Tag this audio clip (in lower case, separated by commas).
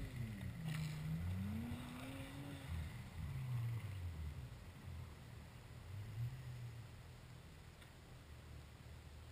truck, vehicle